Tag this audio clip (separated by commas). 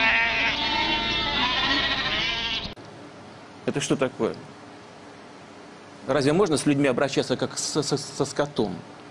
Bleat, Sheep, Music, Speech